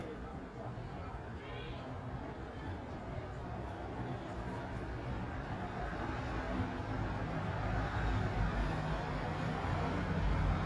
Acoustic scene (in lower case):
residential area